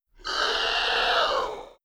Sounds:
animal

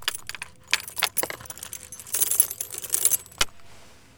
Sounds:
keys jangling
home sounds

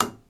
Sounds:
tap

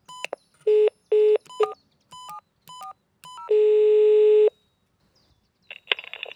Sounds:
alarm
telephone

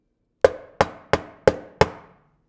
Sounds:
knock
door
domestic sounds

